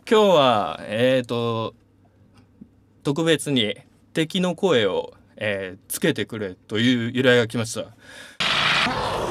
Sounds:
speech

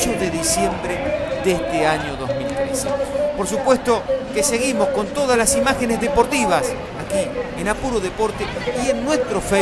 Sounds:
crowd, speech

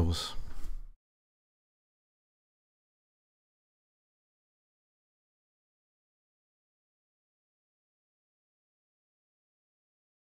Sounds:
speech

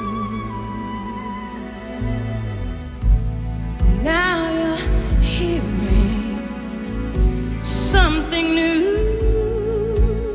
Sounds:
music

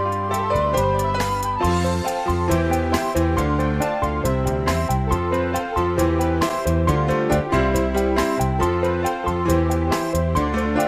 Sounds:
music

